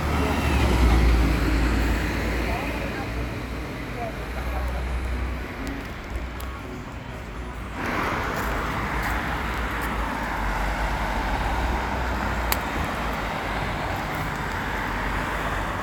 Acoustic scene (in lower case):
residential area